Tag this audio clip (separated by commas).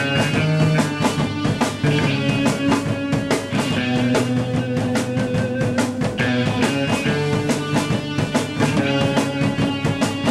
Rock and roll, Music